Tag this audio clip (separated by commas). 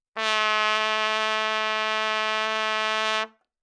Music, Musical instrument, Trumpet, Brass instrument